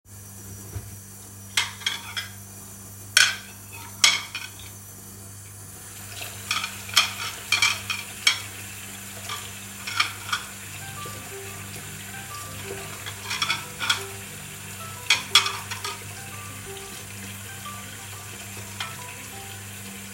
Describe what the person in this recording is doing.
I was washing the plates when I got a phone call, and the water was running from the tap.